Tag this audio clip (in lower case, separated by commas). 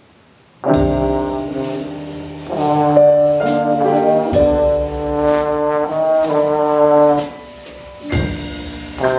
music, inside a large room or hall, jazz